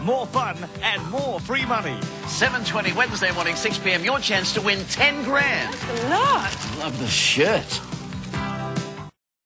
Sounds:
speech
music

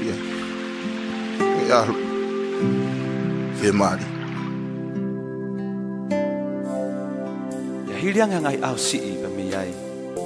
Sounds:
speech
music

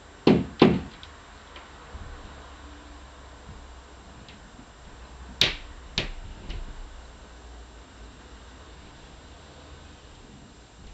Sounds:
inside a small room

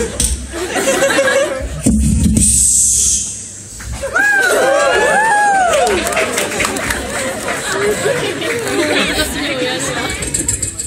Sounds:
speech
beatboxing

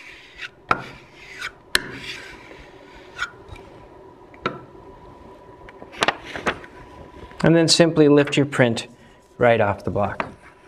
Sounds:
inside a small room
speech

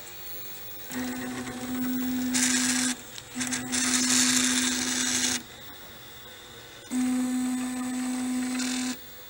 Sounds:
printer printing
speech
printer

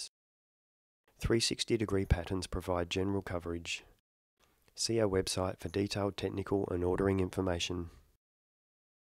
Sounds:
speech

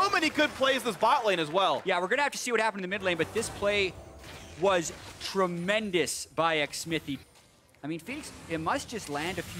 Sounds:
speech

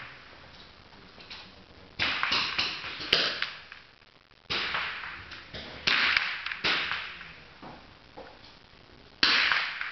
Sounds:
cap gun shooting

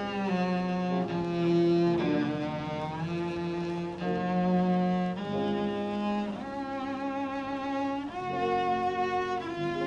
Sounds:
playing double bass

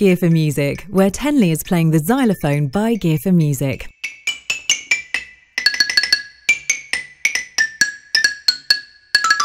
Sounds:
playing glockenspiel

